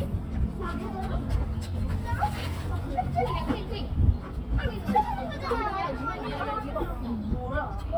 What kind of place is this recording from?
park